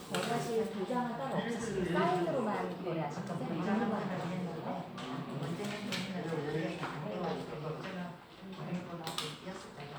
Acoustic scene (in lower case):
crowded indoor space